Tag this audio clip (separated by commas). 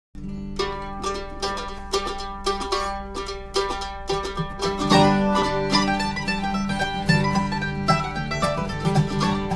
Plucked string instrument, Banjo, Bluegrass, Guitar, Music, Musical instrument, Mandolin